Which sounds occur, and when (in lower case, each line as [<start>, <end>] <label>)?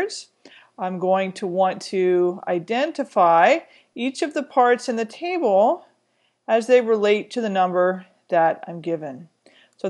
[0.00, 0.30] female speech
[0.01, 9.85] background noise
[0.45, 0.71] breathing
[0.76, 3.59] female speech
[3.64, 3.90] breathing
[3.95, 5.77] female speech
[6.01, 6.36] breathing
[6.40, 8.03] female speech
[8.34, 9.33] female speech
[9.42, 9.79] breathing
[9.73, 9.85] female speech